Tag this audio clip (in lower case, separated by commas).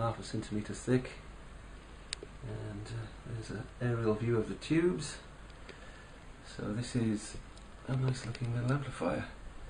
inside a small room, speech